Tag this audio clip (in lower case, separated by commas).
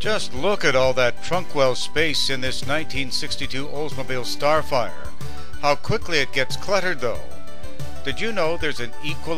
speech, music